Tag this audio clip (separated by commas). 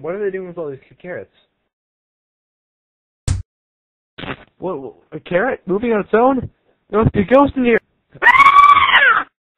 Speech